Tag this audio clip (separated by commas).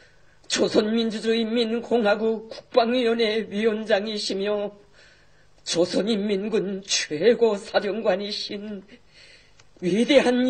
Speech